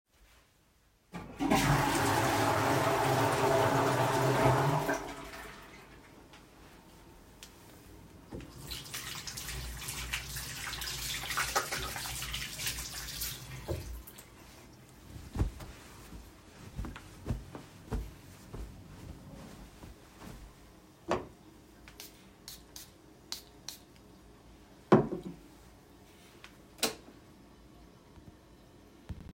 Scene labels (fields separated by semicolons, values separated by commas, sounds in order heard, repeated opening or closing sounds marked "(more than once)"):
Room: lavatory; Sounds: toilet flushing, running water, light switch